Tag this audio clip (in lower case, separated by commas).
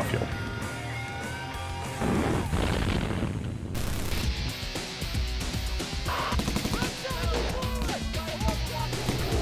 music, speech, artillery fire